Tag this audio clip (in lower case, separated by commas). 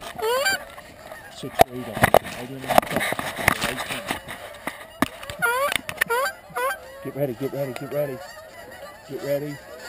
goose, fowl, honk